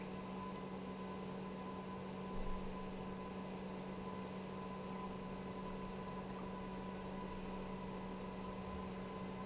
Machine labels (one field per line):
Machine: pump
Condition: normal